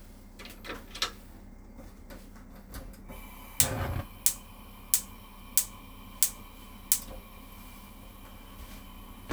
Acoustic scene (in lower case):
kitchen